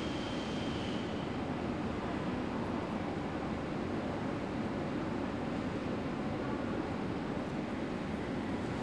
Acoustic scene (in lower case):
subway station